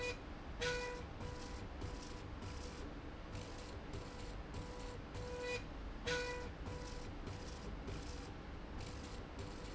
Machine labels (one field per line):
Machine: slide rail